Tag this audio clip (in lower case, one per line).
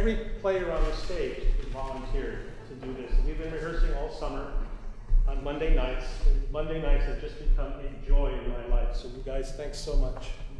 speech